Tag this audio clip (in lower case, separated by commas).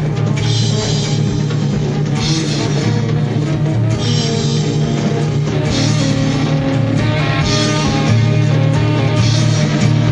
psychedelic rock, music, rock music